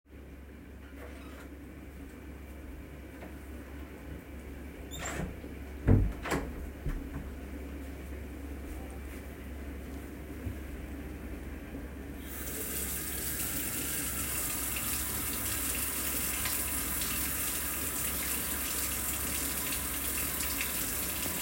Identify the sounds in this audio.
door, running water